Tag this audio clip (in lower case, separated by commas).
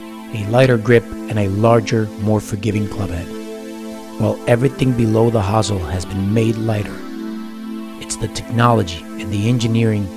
speech, music